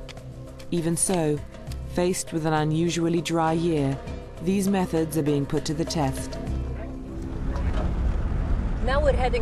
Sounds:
music, outside, rural or natural, speech

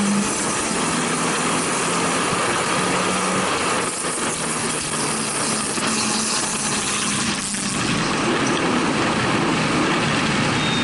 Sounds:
outside, rural or natural, auto racing, car, engine, vehicle

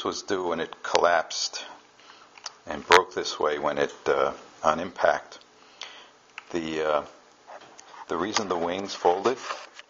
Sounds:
speech

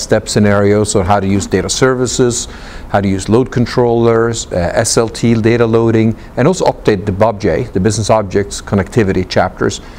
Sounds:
speech

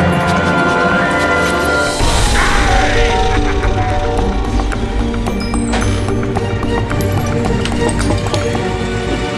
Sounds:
music

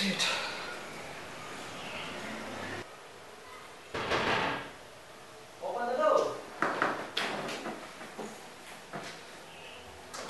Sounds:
speech

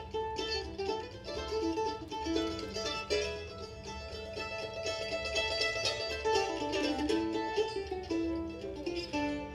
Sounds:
country, guitar, musical instrument, music

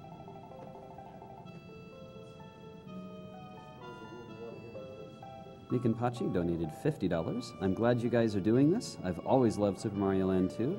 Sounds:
music, speech

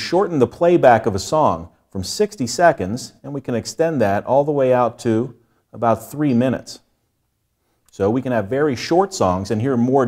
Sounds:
speech

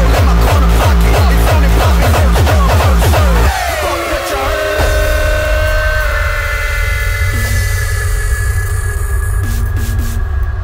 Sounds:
music, sound effect

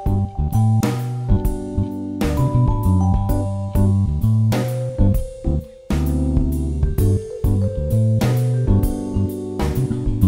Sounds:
jazz, music

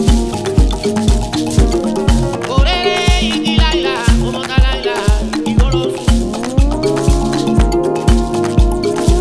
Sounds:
playing theremin

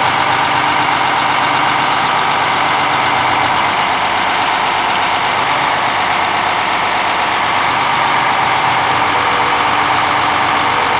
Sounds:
vehicle, truck

